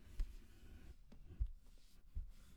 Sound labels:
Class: furniture moving; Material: wooden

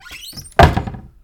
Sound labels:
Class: cupboard; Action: closing; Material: wooden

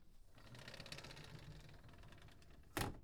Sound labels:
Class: window; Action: closing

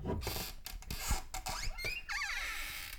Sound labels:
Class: cupboard; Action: opening; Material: wooden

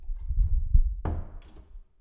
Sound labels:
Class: door; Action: opening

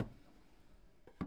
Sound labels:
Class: drawer; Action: closing; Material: wooden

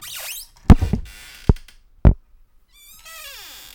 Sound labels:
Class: cupboard; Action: opening; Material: wooden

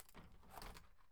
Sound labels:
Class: window; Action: opening; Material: wooden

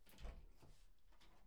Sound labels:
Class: door; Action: opening; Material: wooden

